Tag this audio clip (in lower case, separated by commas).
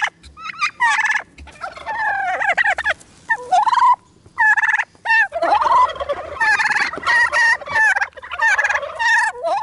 turkey gobbling